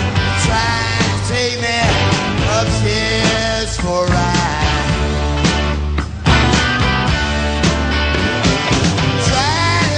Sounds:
music

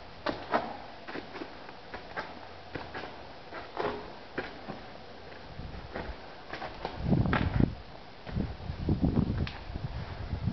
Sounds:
footsteps

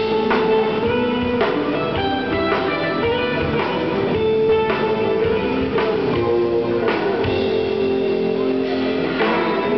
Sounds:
strum, musical instrument, plucked string instrument, guitar, music, electric guitar

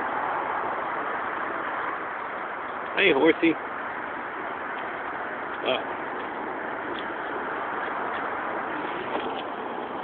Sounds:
speech

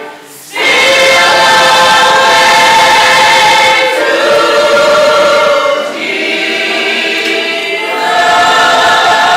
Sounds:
gospel music, music

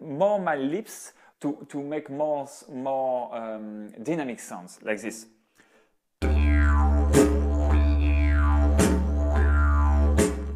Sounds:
playing didgeridoo

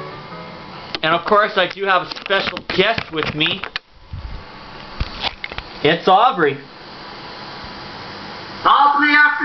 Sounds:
music, speech

